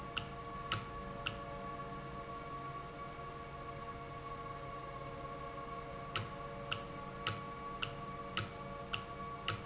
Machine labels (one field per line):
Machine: valve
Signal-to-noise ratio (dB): 0 dB